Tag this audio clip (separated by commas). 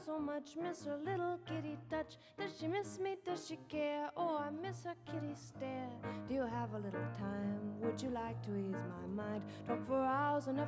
Music